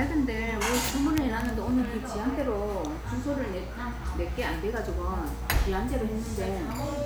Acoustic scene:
restaurant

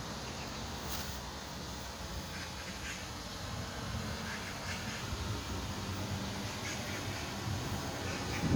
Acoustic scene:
park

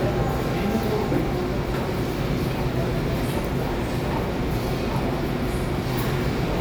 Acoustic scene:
subway station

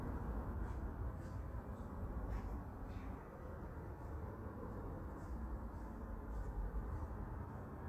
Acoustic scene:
park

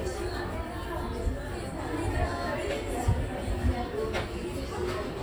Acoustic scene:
crowded indoor space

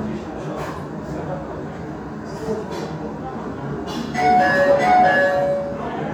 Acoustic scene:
restaurant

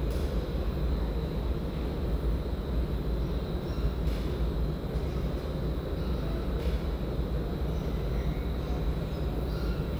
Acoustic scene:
subway station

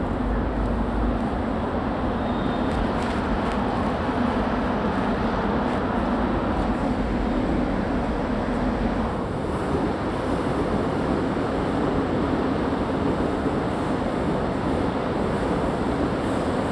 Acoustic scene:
subway station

